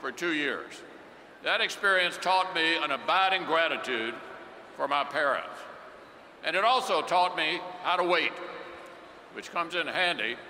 An adult male is speaking